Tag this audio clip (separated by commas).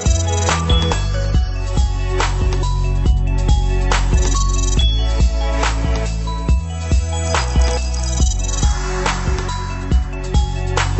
Music